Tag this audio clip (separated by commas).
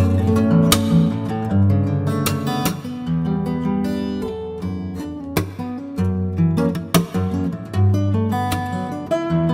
Acoustic guitar, Guitar, Musical instrument, Plucked string instrument, Music